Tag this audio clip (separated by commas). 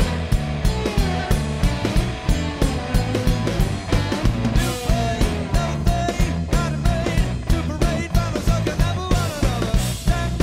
Music